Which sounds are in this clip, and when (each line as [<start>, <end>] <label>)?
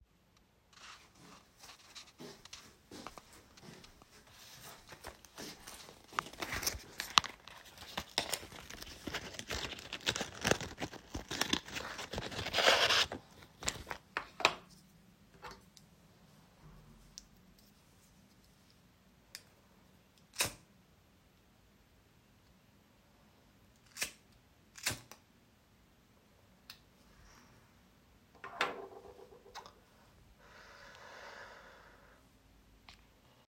[1.39, 6.86] footsteps